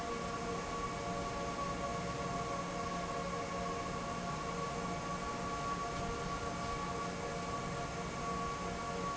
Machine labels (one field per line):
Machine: fan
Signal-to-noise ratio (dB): -6 dB